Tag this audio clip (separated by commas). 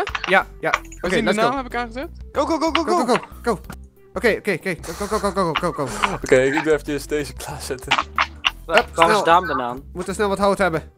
Speech, Run